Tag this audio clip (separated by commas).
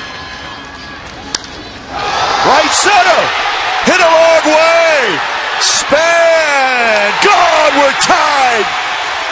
Speech